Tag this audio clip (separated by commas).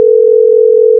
Telephone, Alarm